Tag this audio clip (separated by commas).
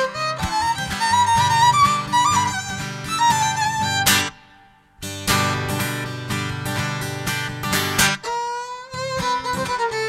Musical instrument, Music, fiddle